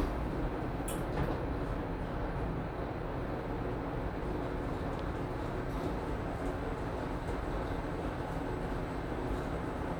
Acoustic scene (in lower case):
elevator